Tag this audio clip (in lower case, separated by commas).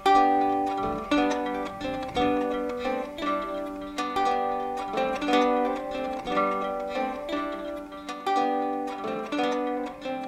ukulele, plucked string instrument, guitar, music, musical instrument